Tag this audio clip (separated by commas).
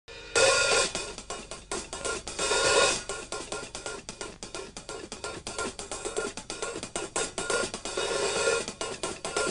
Hi-hat, Music, Drum, Snare drum, Cymbal